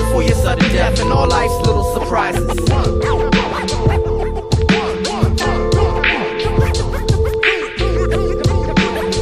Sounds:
Singing, Music, Hip hop music

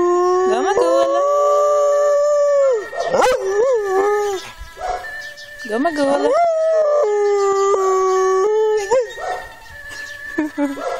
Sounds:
Yip, Whimper (dog), Speech, Bow-wow

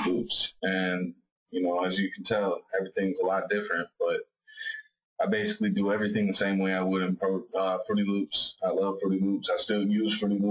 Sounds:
Speech

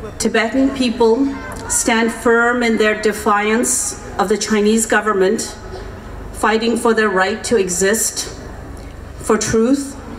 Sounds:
Speech, Narration, Female speech

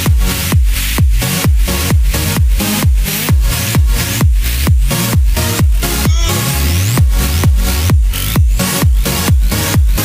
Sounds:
Exciting music, Music

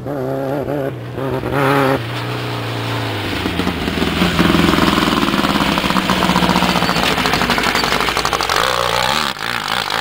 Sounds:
Car, Vehicle, auto racing

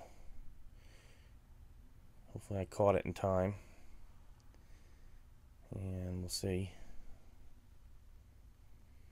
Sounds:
Speech

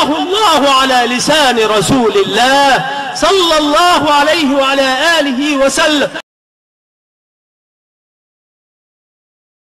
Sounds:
Speech

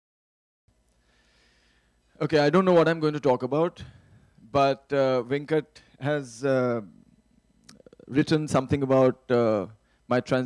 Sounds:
Speech, inside a large room or hall

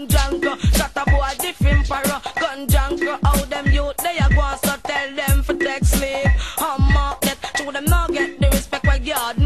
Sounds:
Music

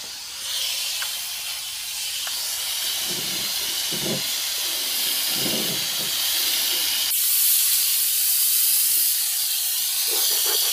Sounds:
Steam, Hiss

